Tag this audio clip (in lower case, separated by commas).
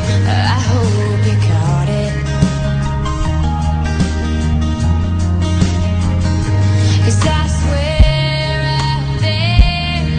music